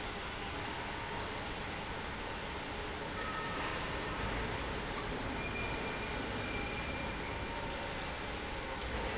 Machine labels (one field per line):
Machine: pump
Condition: normal